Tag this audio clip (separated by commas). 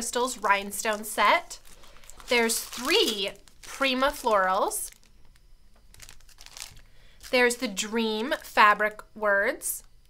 Speech